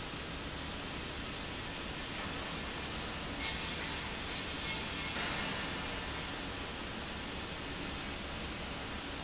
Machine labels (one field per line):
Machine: pump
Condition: abnormal